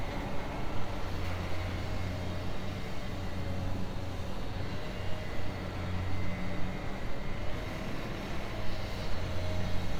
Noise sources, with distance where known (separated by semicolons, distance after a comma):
small or medium rotating saw, far